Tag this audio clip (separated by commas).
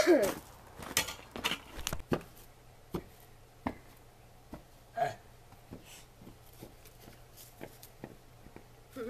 outside, urban or man-made